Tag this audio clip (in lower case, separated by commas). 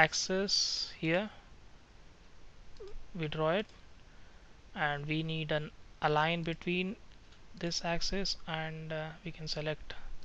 clicking, speech